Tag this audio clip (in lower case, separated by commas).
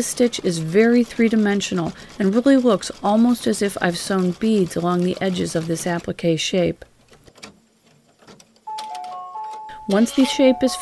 speech, sewing machine